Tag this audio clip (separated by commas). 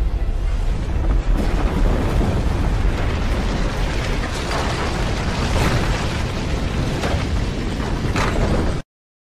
Sound effect